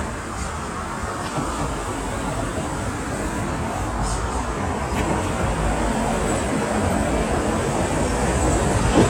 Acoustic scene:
street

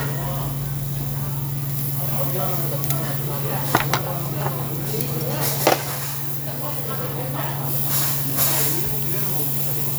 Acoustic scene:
restaurant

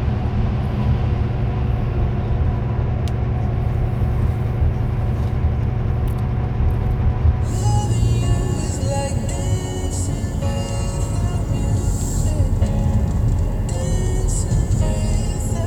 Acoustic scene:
car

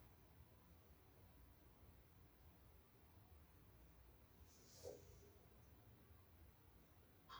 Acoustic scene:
restroom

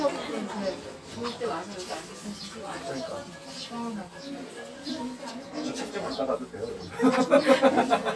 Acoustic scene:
restaurant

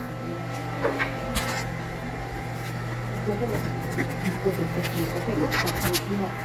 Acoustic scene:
cafe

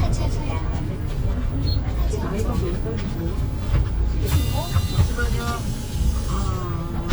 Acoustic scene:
bus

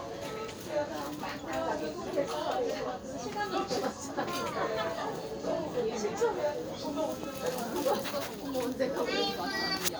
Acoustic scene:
crowded indoor space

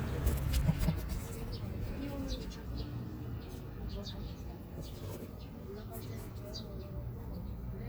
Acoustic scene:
park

